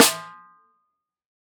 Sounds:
snare drum, drum, musical instrument, music, percussion

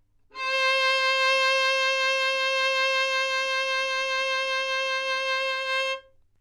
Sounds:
musical instrument, music, bowed string instrument

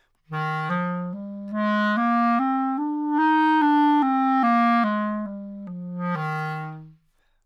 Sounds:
wind instrument, musical instrument, music

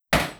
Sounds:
tools, hammer

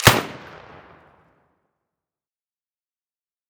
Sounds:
gunfire, explosion

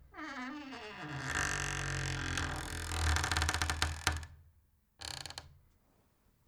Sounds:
squeak

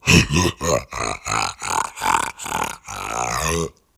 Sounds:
human voice, laughter

